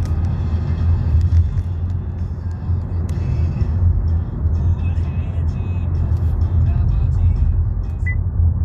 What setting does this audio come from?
car